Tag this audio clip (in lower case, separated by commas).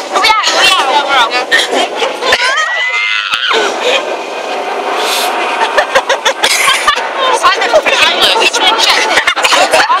outside, urban or man-made, speech